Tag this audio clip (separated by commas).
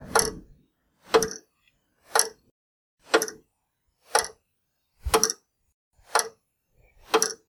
Mechanisms, Clock